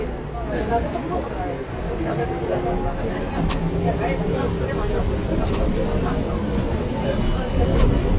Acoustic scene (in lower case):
bus